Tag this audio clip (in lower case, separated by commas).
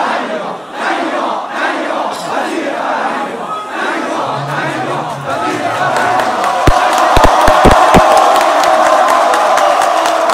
speech